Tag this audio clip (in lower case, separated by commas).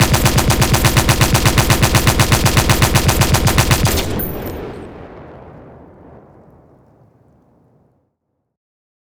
gunfire, explosion